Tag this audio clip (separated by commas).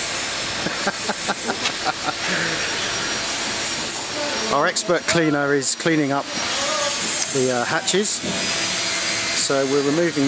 Speech